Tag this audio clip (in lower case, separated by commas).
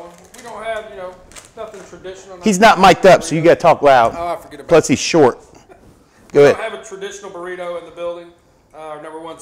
speech